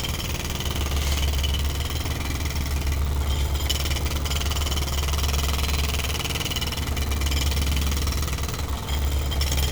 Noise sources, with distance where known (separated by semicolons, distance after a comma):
jackhammer, near